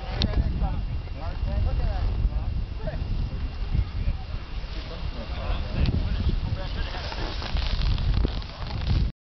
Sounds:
Speech

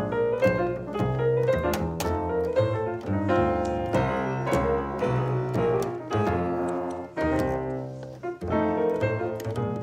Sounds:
playing piano

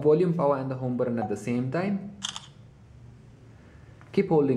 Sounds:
Speech

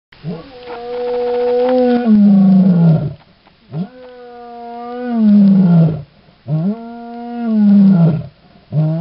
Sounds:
Roar, Animal, canids, roaring cats, lions growling, Domestic animals

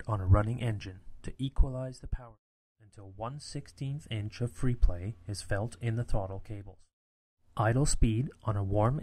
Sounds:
Speech

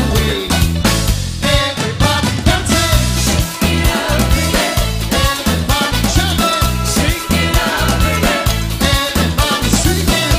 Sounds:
Salsa music, Music, Singing

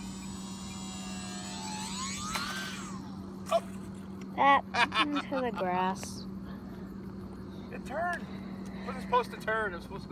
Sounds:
Speech, outside, rural or natural

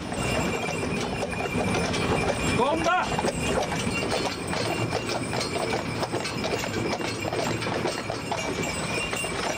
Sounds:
Speech

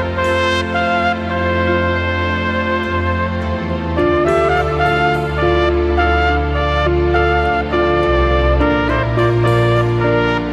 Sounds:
playing trumpet

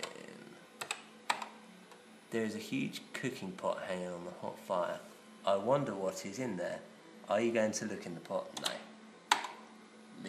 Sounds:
Speech, Typing

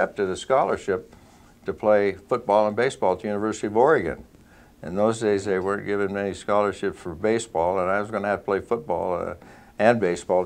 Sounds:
Speech

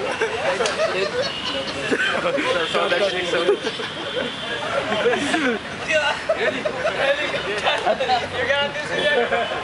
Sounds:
Speech, Hubbub, outside, urban or man-made

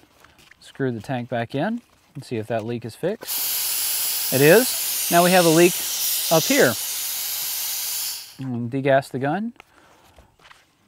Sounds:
outside, rural or natural, Speech

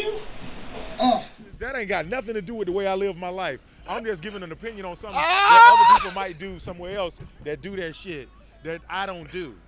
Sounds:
Snicker

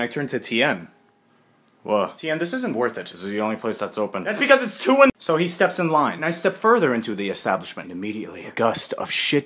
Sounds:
Speech

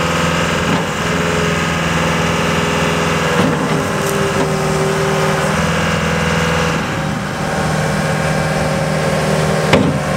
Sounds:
Vehicle

